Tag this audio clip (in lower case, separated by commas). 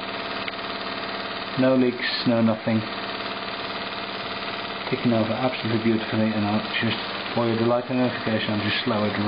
speech, inside a small room, engine